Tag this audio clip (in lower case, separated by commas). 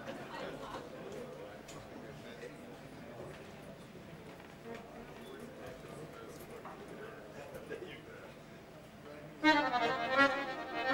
music, speech